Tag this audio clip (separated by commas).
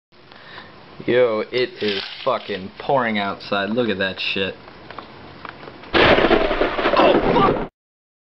Thunder